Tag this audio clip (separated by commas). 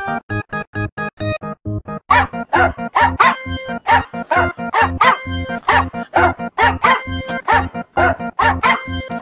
Yip, Music